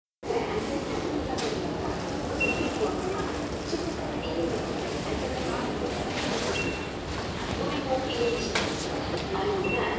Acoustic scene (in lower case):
crowded indoor space